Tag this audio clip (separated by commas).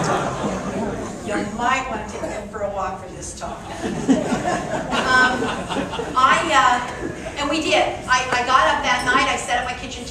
Speech, woman speaking